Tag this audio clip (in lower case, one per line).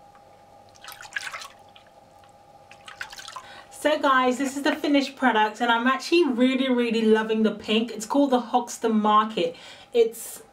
drip
speech
inside a small room